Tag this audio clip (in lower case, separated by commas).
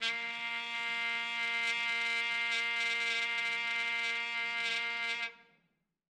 musical instrument, trumpet, music, brass instrument